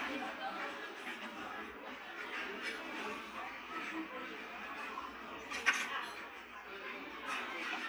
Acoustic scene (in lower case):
restaurant